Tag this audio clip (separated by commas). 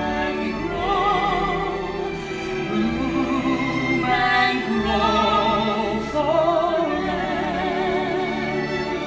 Music